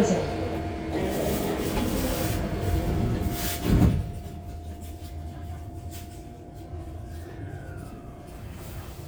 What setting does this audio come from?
subway train